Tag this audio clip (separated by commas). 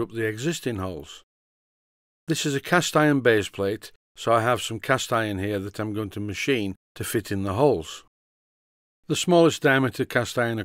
Speech